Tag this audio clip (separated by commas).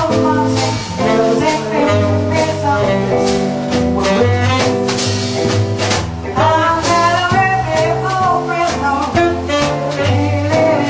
Music